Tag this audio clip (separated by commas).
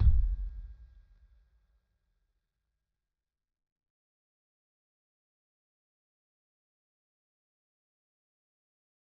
Drum, Percussion, Bass drum, Musical instrument, Music